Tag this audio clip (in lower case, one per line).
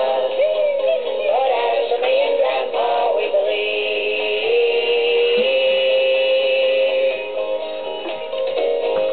music